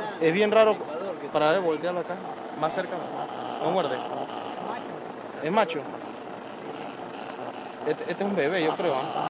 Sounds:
speech

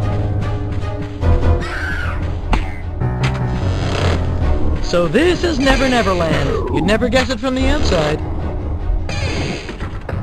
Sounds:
speech, music

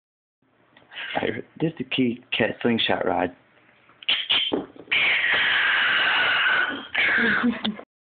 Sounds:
cat, speech, animal, caterwaul, pets

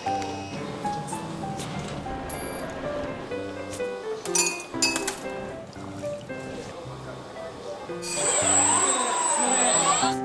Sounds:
liquid, chink, music, glass, speech

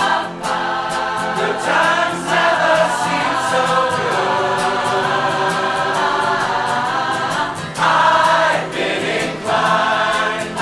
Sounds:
singing choir

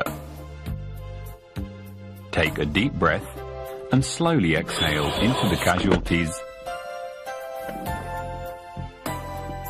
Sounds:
speech, music

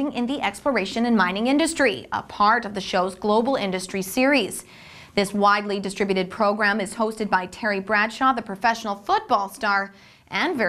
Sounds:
television, speech

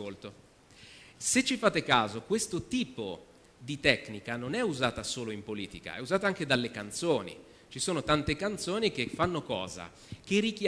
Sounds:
speech, man speaking, narration

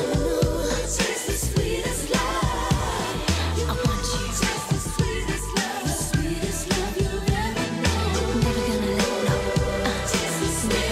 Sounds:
music

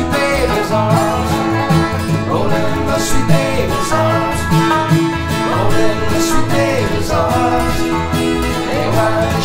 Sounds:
slide guitar, musical instrument, music, banjo

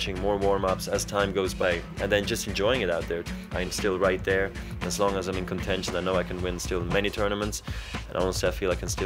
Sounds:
music, speech

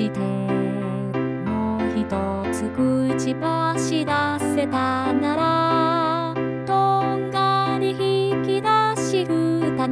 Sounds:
female singing, music

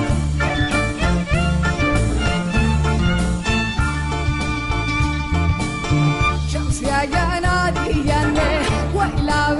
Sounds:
music, jazz, funk

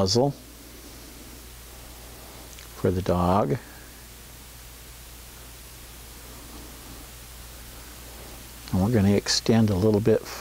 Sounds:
speech

